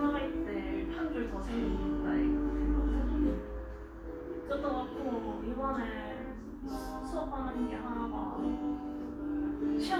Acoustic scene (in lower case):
crowded indoor space